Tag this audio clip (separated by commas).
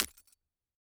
Glass, Shatter